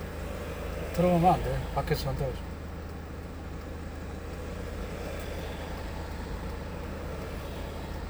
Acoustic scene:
car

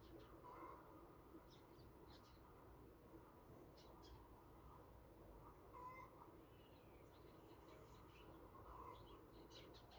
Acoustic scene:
park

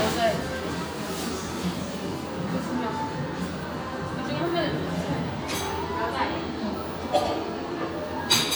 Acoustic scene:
crowded indoor space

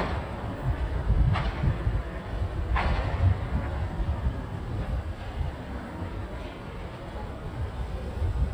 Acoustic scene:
street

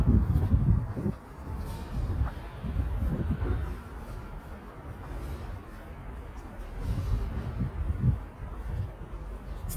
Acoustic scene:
residential area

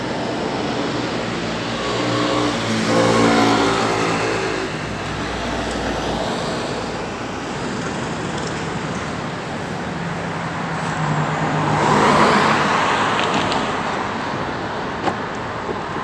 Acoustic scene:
street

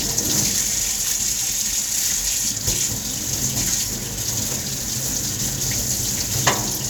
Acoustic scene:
kitchen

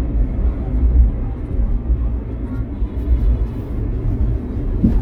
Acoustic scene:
car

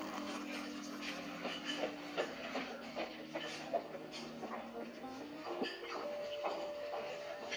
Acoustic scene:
restaurant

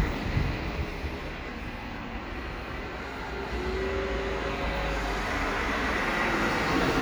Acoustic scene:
residential area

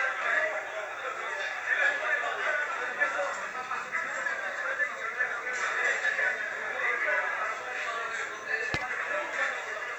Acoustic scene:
crowded indoor space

